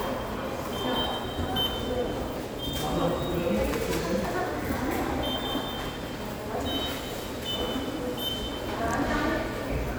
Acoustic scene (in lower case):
subway station